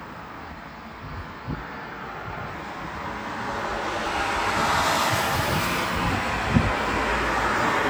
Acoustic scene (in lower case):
street